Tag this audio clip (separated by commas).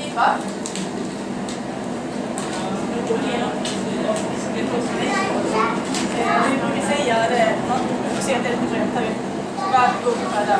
Speech